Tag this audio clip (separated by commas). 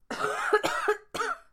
Cough, Respiratory sounds